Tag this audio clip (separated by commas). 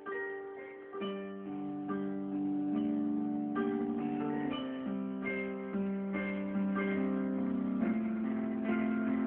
Music, New-age music